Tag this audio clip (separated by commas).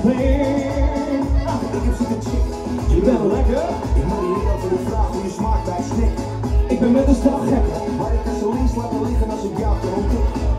Speech, Music